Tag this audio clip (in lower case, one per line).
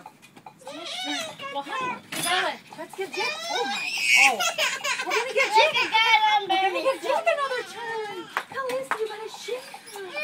speech
clip-clop